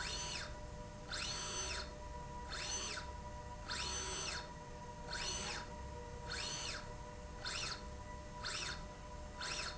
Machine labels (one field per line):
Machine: slide rail